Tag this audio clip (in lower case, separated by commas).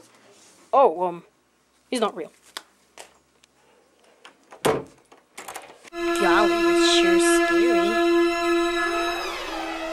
music, speech